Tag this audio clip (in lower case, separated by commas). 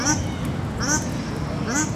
fowl, animal, livestock, bird, wild animals